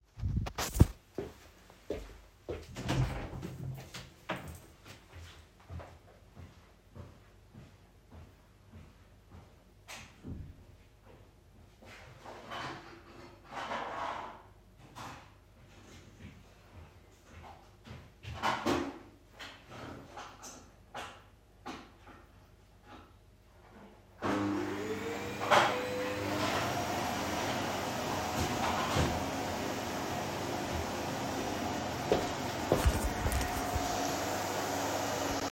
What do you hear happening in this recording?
I walked out the bedroom to pick up the vacuum cleaner to hover the hallway in front of the bedroom